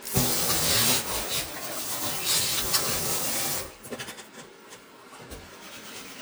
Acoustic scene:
kitchen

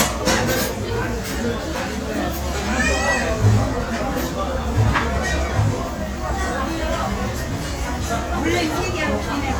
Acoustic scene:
restaurant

